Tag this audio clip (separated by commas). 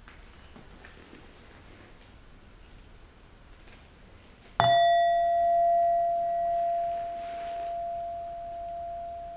singing bowl